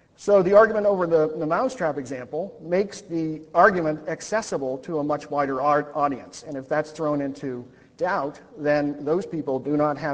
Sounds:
Speech

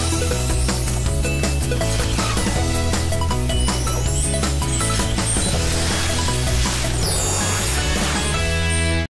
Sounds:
Music

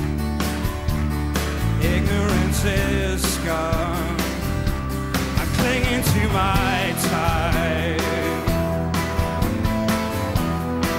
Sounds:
Music, Rhythm and blues

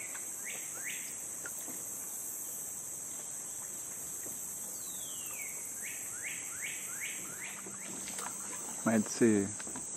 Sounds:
Rowboat, Speech

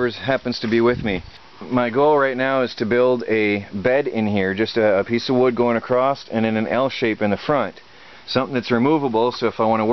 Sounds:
Speech

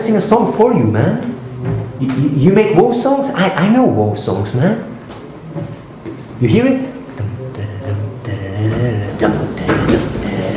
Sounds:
Speech

